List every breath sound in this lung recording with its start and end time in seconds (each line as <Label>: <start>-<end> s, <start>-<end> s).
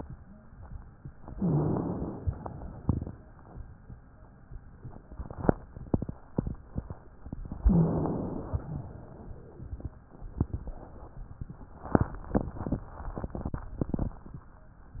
Inhalation: 1.27-2.21 s, 7.61-8.67 s
Exhalation: 2.21-3.62 s, 8.67-10.01 s
Wheeze: 1.37-1.95 s, 7.64-8.08 s